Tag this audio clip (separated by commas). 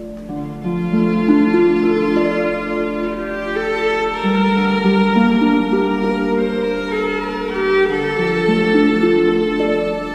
Musical instrument, fiddle, Music